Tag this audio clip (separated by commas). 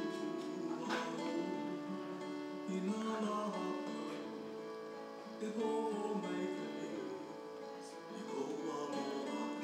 Music